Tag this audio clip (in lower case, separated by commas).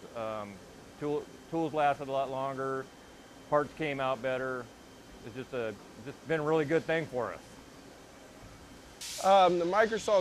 speech